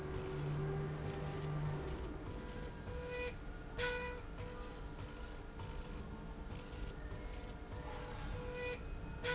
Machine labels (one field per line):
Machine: slide rail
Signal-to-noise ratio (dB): 0 dB